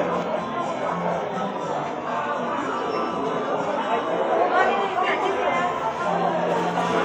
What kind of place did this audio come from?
cafe